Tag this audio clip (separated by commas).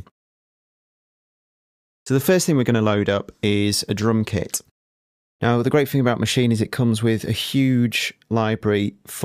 Speech